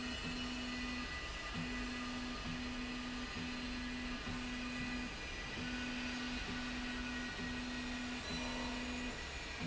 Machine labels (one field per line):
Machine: slide rail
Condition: normal